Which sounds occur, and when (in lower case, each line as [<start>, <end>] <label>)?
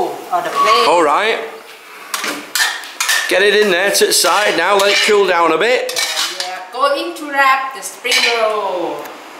[0.00, 0.86] woman speaking
[0.00, 9.05] conversation
[0.00, 9.35] mechanisms
[0.54, 0.89] squeal
[0.83, 1.45] male speech
[2.11, 2.34] dishes, pots and pans
[2.53, 2.85] dishes, pots and pans
[2.99, 3.31] dishes, pots and pans
[3.28, 5.78] male speech
[3.92, 4.58] stir
[4.79, 5.17] stir
[5.88, 6.56] stir
[5.95, 7.90] woman speaking
[8.02, 9.14] woman speaking
[8.03, 8.34] dishes, pots and pans